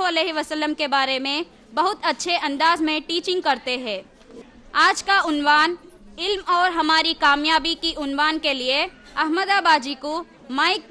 A woman speaks loudly